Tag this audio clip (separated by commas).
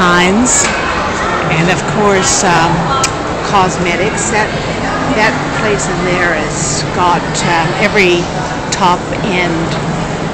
Speech